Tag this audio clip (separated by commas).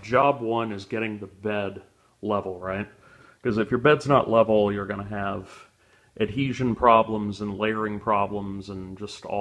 Speech